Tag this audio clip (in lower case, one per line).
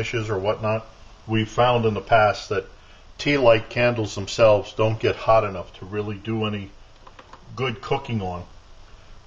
boiling
speech